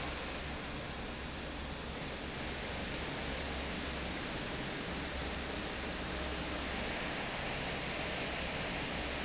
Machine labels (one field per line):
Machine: fan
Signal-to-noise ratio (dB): -6 dB